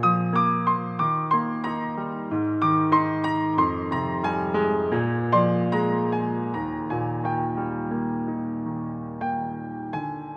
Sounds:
Music

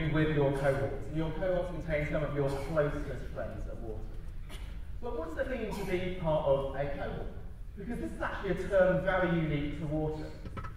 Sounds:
man speaking, Speech

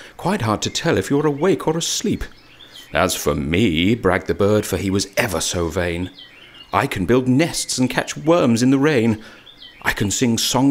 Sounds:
Speech

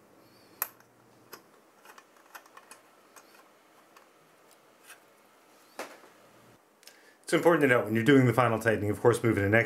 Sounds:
Speech

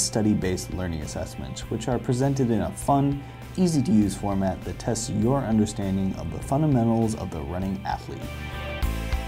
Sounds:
Speech, Music

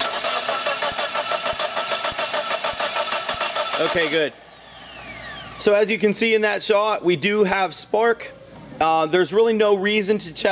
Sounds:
Engine

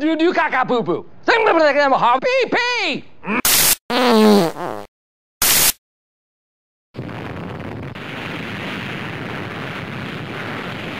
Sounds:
Speech

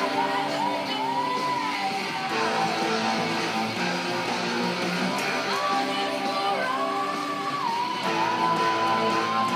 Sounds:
Plucked string instrument, Musical instrument, Music, Guitar

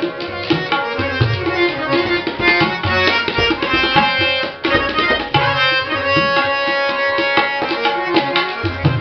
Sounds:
playing tabla

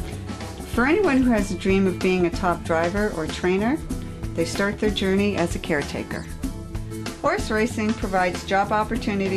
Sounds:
Speech, Music

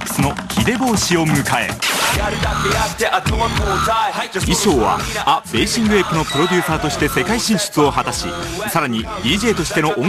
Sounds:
Music, Speech

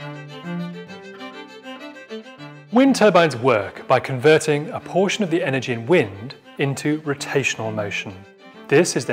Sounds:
Speech, Music

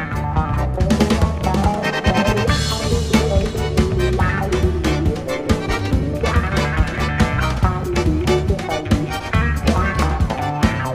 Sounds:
Bowed string instrument, Music, Double bass, Musical instrument

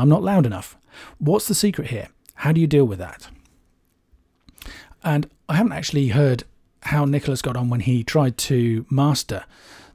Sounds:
Speech

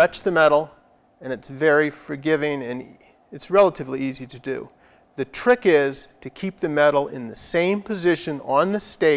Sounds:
Speech

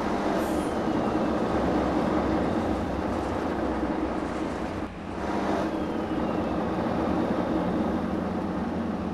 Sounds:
Bus, driving buses

